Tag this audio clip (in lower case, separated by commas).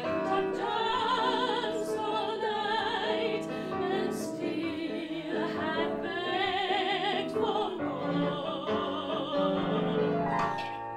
music, a capella